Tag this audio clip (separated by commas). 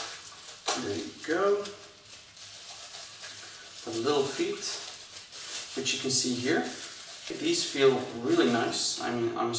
Speech